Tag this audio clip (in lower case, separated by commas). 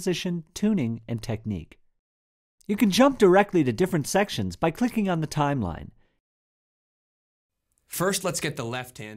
speech